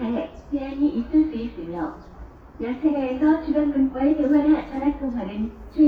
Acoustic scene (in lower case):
subway station